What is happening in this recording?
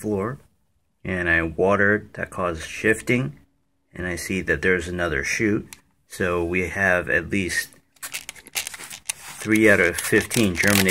A person talking and a spraying sound